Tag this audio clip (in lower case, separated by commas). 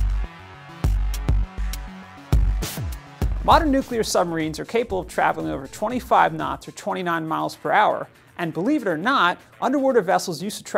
music, speech